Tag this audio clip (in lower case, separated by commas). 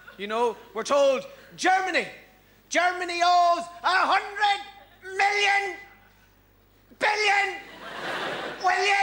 snicker, speech